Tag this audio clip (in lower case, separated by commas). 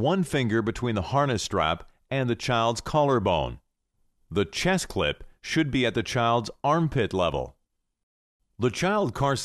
speech